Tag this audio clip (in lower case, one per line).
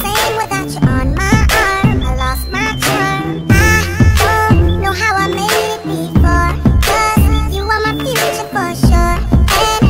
music